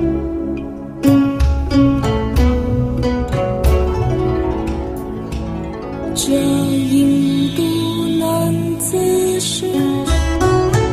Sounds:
zither, pizzicato

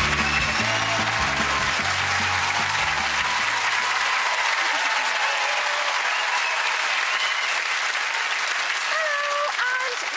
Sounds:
music, speech

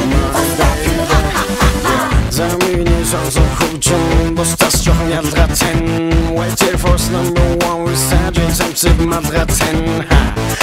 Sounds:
music

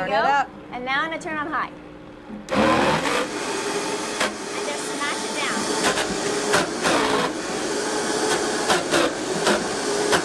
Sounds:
speech, inside a small room

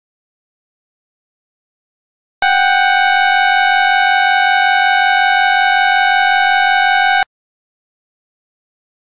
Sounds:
truck horn, vehicle horn

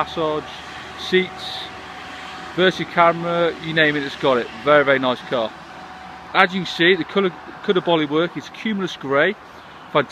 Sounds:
speech

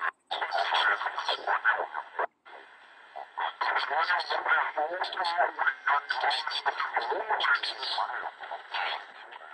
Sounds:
speech, radio

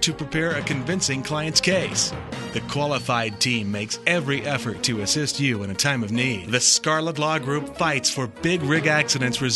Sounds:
speech, music

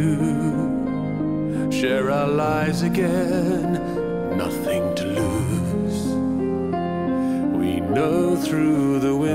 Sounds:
music

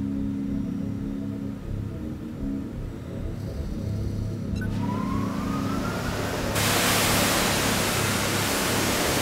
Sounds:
music, pink noise

